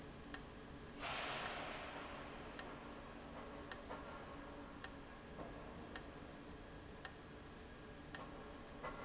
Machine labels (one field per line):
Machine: valve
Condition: abnormal